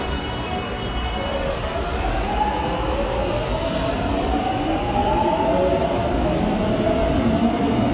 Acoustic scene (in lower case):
subway station